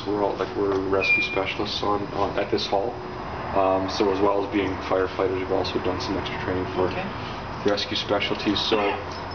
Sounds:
Speech

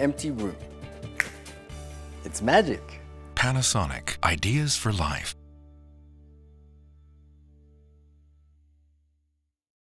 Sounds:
Speech, Music

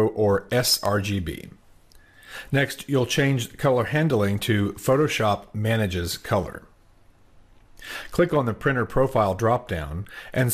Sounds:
Speech

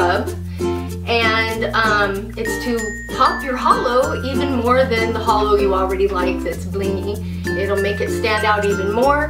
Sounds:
Music, Speech

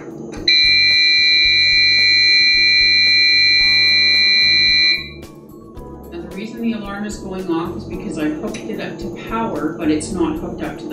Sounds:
Alarm, Speech, Music, inside a small room

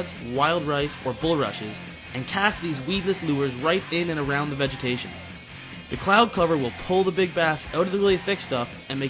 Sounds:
Speech, Music

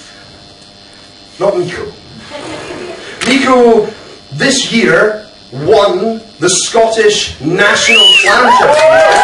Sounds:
Speech

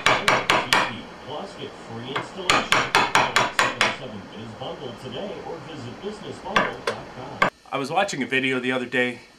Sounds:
Speech, Wood, Television, Tools, inside a small room

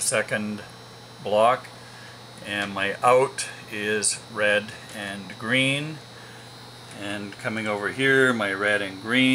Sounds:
Speech

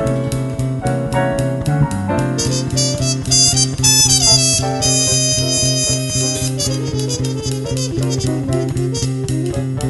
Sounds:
Music, Jazz

